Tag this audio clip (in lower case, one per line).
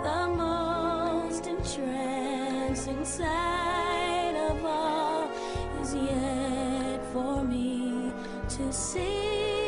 music